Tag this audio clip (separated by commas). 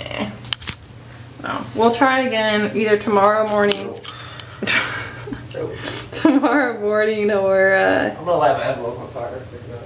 Speech